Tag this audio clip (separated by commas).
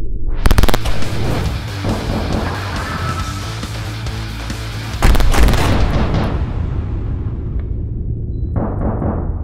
machine gun shooting